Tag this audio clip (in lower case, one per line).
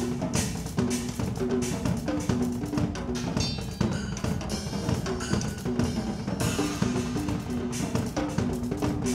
musical instrument
cymbal
bass drum
drum
drum kit
music
percussion